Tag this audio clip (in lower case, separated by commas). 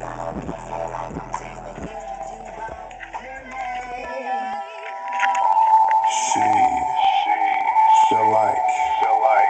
music, swish, speech